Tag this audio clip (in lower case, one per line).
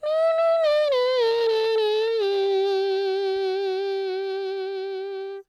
singing
human voice